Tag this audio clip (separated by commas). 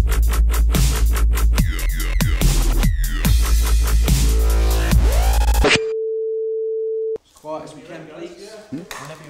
inside a large room or hall, Music, Speech